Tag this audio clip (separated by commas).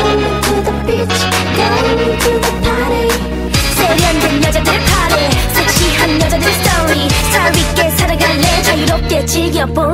Music